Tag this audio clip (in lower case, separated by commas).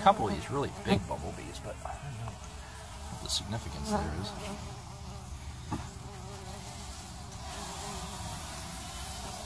wasp